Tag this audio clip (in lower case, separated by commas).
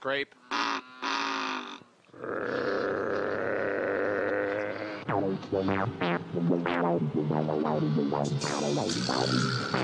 music, speech